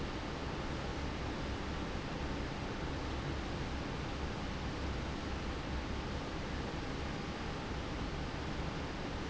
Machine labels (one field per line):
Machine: fan